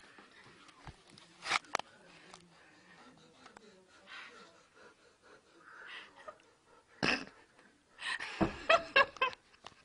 A door closes, and a woman laughs